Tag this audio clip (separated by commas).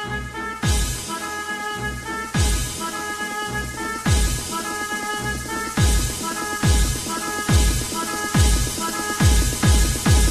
Techno, Electronic music, Music